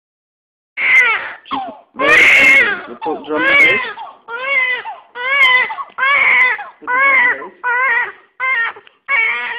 A baby cries while a man speaks